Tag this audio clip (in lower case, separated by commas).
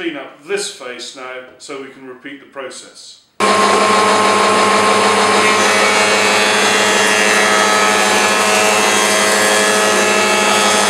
planing timber